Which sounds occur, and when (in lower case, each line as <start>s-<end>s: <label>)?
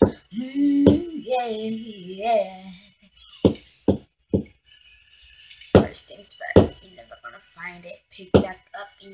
0.0s-0.1s: thunk
0.0s-4.0s: music
0.3s-2.6s: child singing
0.8s-1.0s: thunk
3.0s-3.8s: speech synthesizer
3.4s-3.5s: thunk
3.8s-4.0s: thunk
4.3s-4.4s: thunk
4.3s-9.1s: music
5.7s-5.9s: thunk
5.7s-6.6s: rapping
6.5s-6.7s: thunk
6.7s-9.1s: rapping
8.3s-8.4s: thunk